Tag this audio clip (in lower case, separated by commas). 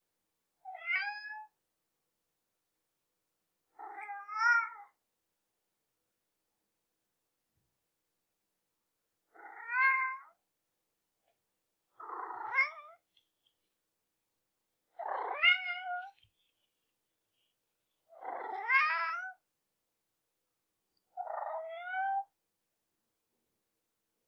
meow, pets, cat, animal